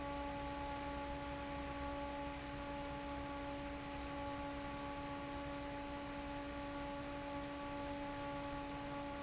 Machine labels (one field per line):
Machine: fan